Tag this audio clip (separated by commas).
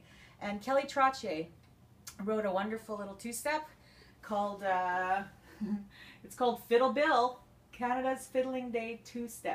Speech